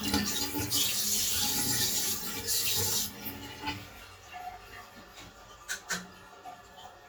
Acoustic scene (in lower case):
restroom